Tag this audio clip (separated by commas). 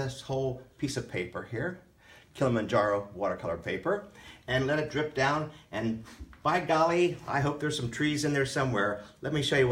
Speech